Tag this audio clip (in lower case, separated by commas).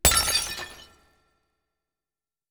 shatter, glass